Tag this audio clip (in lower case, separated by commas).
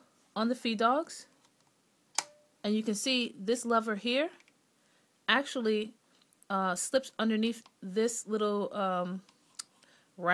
speech